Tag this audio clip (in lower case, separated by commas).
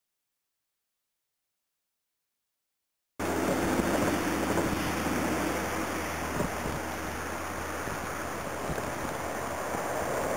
rustling leaves